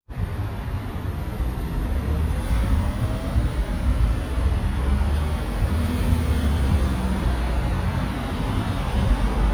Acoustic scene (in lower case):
street